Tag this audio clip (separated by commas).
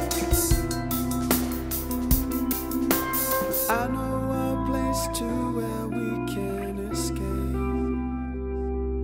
Music